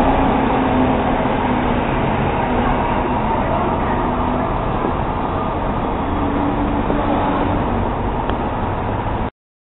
City traffic sounds